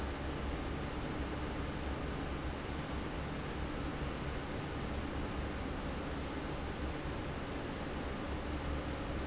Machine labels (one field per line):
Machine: fan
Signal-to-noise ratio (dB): -6 dB